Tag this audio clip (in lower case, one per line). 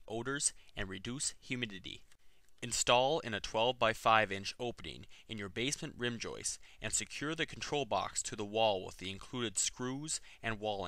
speech
monologue